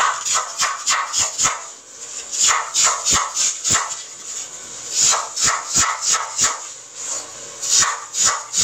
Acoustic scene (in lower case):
kitchen